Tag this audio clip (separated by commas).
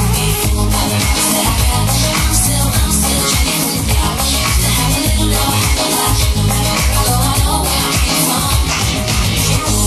Singing, Pop music, Disco